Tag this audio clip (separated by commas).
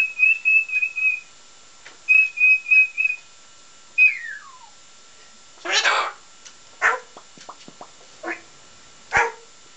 dog barking, pets, Bird, Bark, Animal